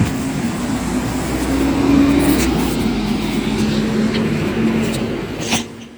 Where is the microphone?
on a street